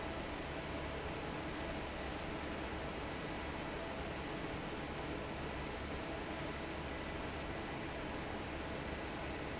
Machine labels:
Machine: fan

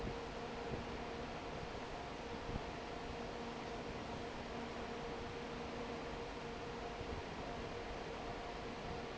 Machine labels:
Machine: fan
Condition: normal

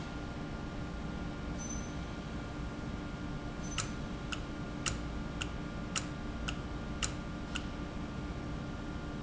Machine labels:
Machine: valve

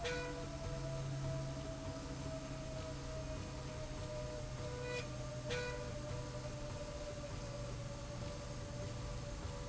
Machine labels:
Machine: slide rail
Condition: normal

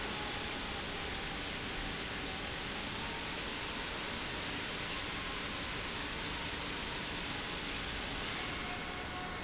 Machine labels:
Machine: pump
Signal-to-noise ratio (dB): -6 dB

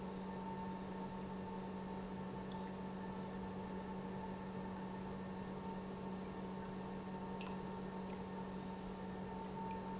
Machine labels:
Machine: pump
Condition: normal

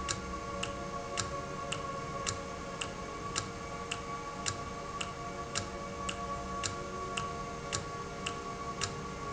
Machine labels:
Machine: valve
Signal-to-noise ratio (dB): -6 dB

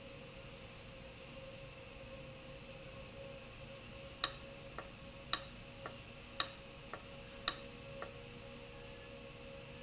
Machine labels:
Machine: valve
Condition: abnormal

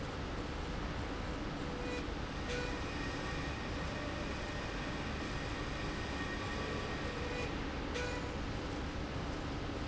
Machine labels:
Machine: slide rail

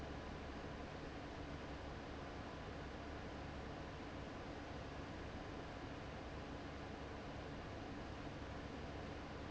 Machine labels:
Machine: fan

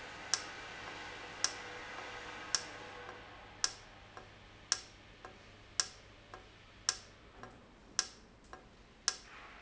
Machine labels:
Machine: valve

